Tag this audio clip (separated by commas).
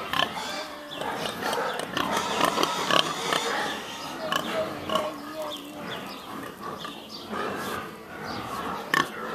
Pig, Animal, Speech, livestock